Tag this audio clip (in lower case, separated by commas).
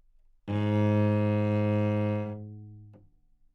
bowed string instrument, music, musical instrument